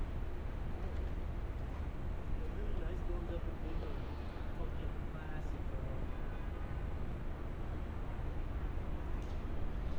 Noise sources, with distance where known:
person or small group talking, near

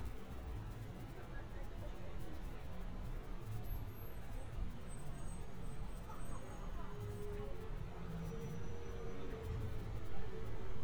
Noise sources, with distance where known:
music from an unclear source
person or small group talking

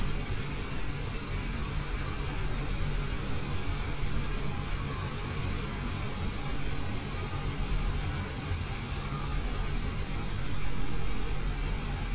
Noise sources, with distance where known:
engine of unclear size

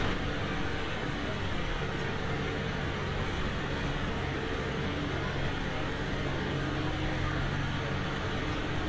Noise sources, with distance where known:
rock drill, near

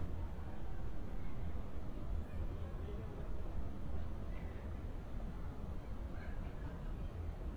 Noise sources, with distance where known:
person or small group talking, far

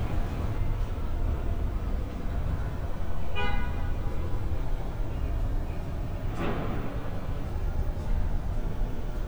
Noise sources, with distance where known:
car horn, near

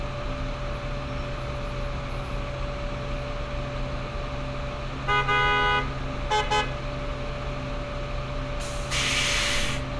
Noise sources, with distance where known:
large-sounding engine, near
car horn, near

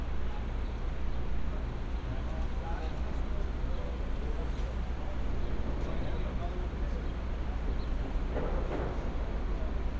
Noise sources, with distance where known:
person or small group talking, far

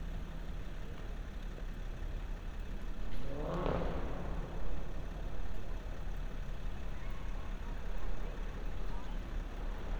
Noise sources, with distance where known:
engine of unclear size

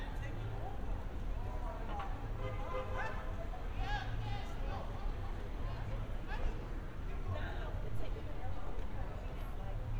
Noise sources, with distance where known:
unidentified alert signal, far
person or small group talking

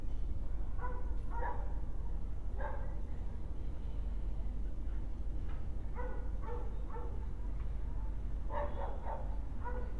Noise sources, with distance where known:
dog barking or whining

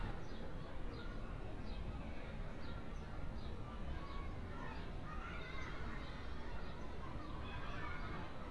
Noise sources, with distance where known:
person or small group shouting, far

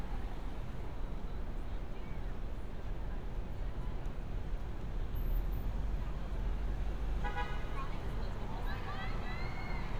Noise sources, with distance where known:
car horn, near
person or small group talking, far

